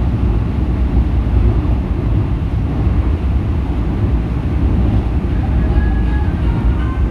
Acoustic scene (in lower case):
subway train